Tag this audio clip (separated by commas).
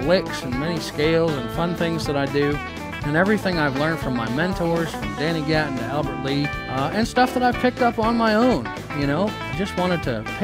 Strum, Musical instrument, Speech, Guitar, Electric guitar, Plucked string instrument, Music